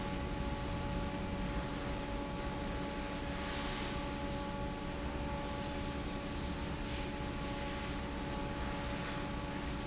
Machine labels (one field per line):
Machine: fan